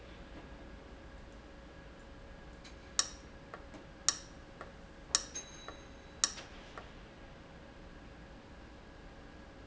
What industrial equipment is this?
valve